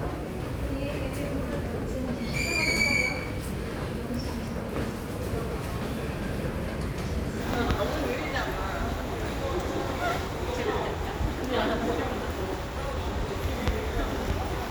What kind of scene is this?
subway station